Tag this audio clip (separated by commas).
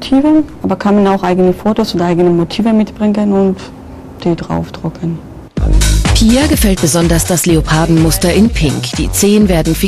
Speech, Music